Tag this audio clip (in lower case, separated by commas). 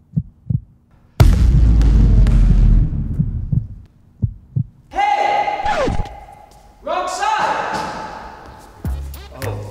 basketball bounce